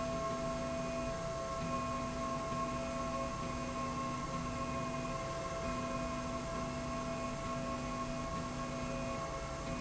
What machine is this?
slide rail